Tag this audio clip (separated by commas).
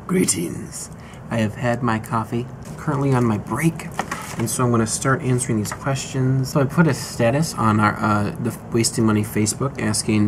inside a large room or hall, Speech